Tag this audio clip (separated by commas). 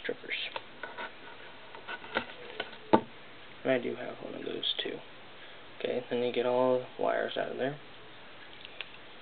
Scrape, Speech